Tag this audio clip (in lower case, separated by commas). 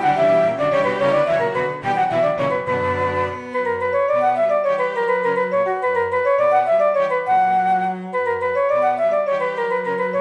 flute, music, musical instrument